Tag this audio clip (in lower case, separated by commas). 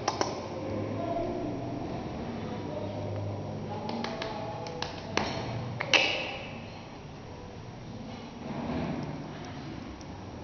speech